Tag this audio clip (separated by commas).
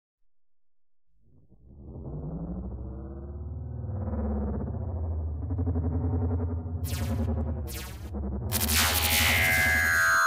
Silence